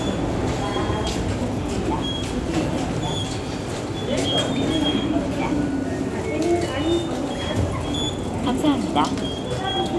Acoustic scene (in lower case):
subway station